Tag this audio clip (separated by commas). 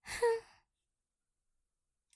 Human voice, Sigh